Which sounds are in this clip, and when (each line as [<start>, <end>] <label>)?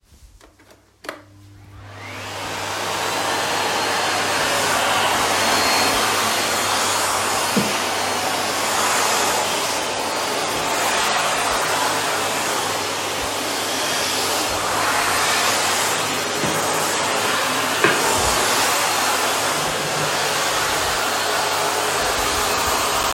[1.59, 23.14] vacuum cleaner